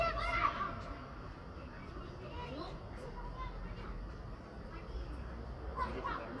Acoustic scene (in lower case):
residential area